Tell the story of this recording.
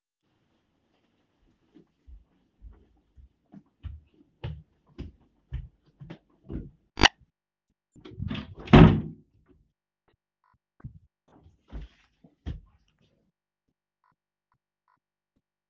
I walk in living room(door is open) and close the door behing me,than I walk a bit more